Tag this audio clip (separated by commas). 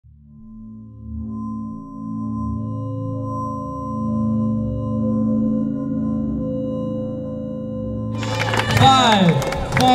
Music, Speech